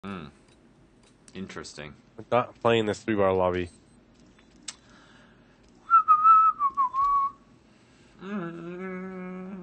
A man is speaking then he whistles and hums